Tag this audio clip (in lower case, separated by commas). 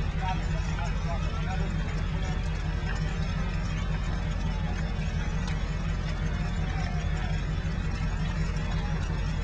speech, crackle